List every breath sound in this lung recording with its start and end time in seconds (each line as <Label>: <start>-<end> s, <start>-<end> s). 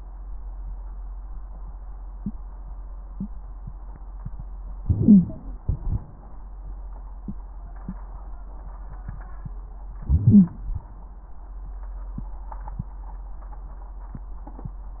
Inhalation: 4.80-5.66 s, 10.03-10.76 s
Exhalation: 5.69-6.43 s
Wheeze: 10.01-10.80 s
Crackles: 4.80-5.68 s